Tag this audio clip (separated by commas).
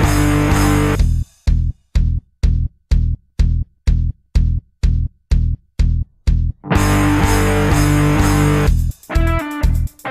Music